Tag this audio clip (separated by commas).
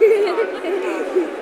Laughter, Human voice